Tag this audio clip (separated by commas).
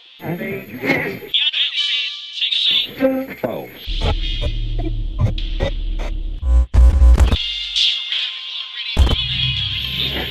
inside a large room or hall, Speech, Music